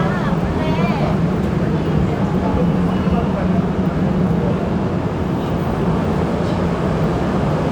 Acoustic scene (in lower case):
subway station